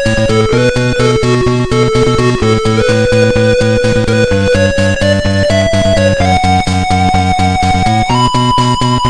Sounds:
Music

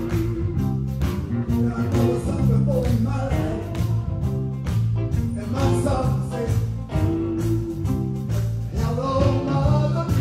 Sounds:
Music

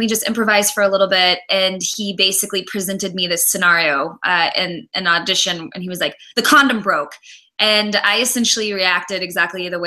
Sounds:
Speech

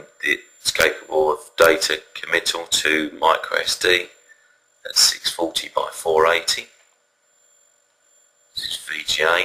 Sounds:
Speech

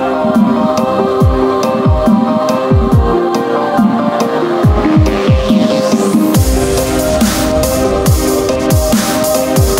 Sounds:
Music, Electronic music, Dubstep

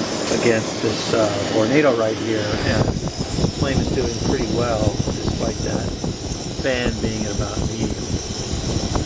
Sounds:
Speech, Wind noise (microphone)

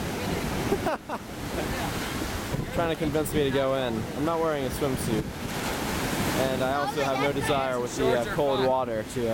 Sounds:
Speech

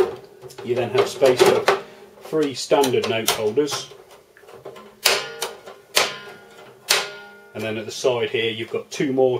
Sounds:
Speech, Cash register

